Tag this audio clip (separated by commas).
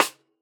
Music, Percussion, Musical instrument, Drum, Snare drum